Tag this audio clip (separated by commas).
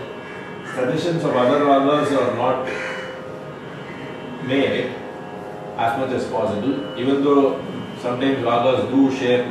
Speech